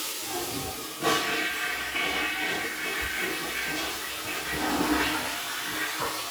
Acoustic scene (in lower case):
restroom